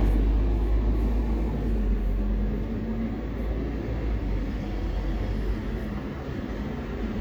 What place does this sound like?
street